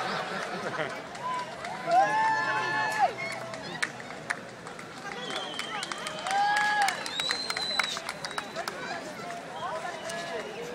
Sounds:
speech

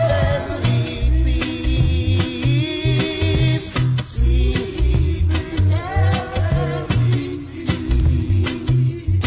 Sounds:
jingle (music), music

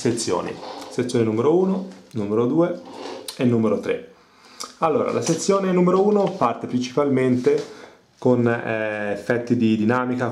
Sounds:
speech

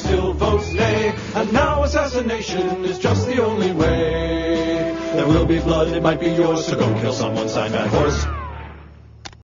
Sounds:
music

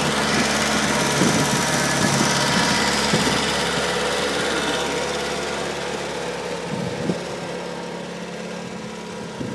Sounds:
vehicle, outside, rural or natural, idling

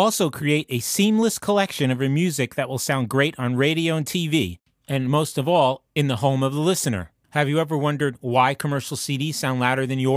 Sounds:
speech

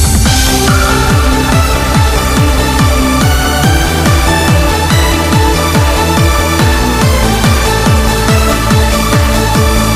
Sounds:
music, blues

